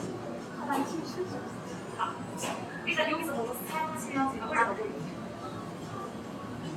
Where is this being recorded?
in a cafe